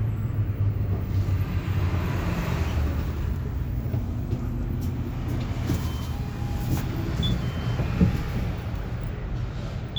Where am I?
on a bus